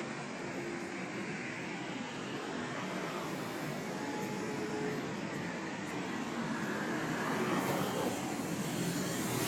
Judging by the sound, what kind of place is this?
street